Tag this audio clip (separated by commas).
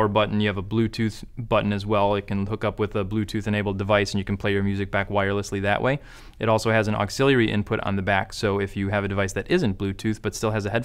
Speech